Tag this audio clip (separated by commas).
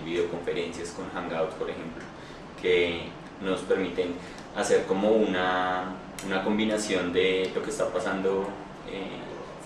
Speech